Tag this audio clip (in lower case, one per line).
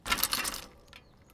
bicycle
vehicle